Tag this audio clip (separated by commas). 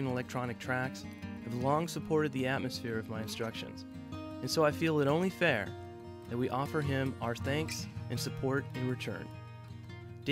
Music, Speech